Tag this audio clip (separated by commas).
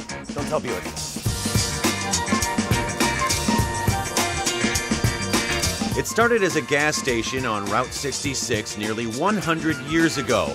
Speech, Music